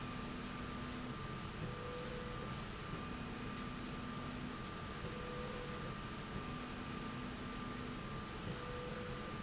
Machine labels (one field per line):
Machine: slide rail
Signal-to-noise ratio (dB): 0 dB